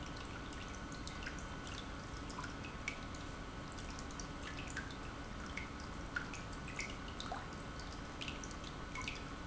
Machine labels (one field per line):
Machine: pump